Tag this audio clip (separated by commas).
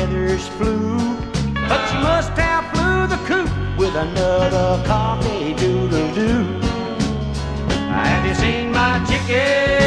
Music